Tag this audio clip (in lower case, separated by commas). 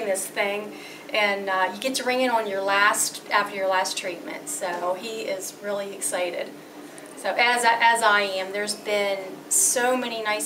speech